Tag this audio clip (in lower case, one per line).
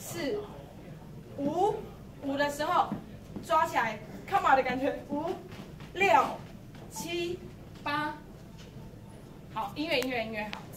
speech